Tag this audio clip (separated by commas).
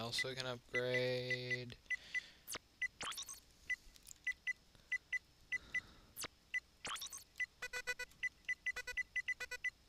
Speech